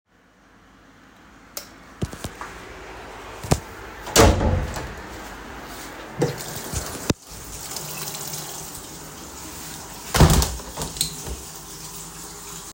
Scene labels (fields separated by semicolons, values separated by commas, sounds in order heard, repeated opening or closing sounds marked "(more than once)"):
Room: bathroom; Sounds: light switch, door (more than once), running water